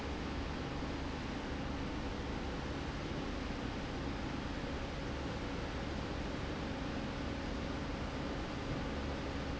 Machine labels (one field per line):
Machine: slide rail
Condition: normal